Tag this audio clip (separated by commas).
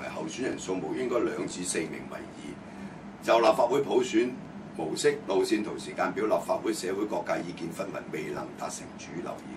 Speech